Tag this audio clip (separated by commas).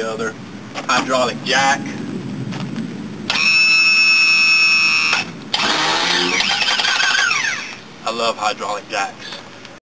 Speech